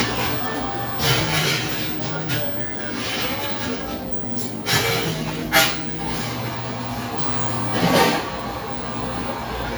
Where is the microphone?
in a cafe